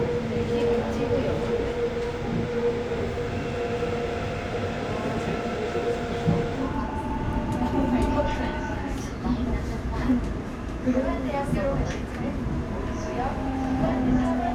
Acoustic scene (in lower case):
subway train